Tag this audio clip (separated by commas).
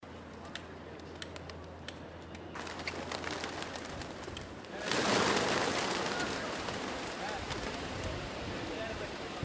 Animal, Wild animals, Bird